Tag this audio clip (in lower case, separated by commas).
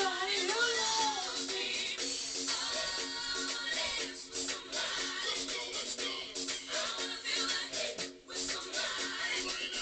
music